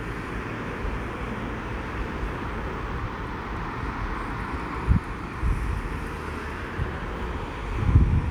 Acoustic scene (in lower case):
street